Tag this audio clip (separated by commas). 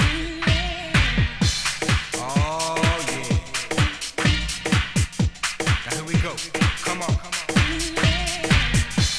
House music, Music